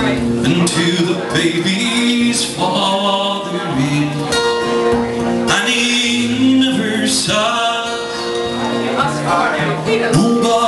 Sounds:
Music, Speech

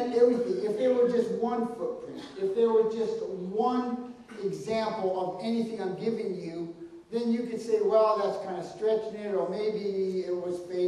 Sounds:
Speech

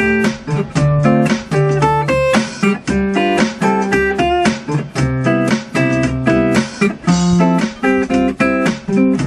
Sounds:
Music, Electric guitar, Strum, Musical instrument, Guitar, Plucked string instrument

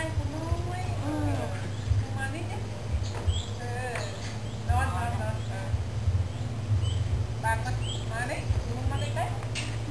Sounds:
Speech

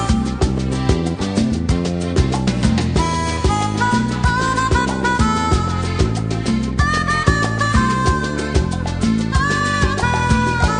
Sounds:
Salsa music

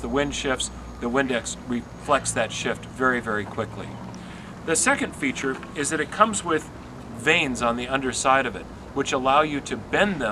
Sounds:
Speech

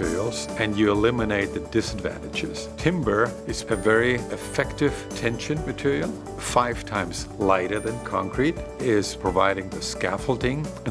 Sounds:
Speech, Music

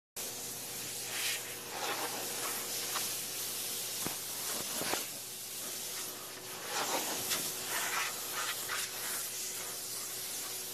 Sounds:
Spray

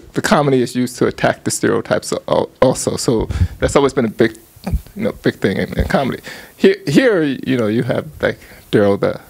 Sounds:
Speech

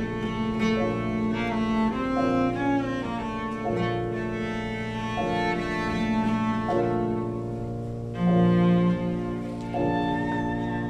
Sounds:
Cello, Music, Bowed string instrument, Musical instrument

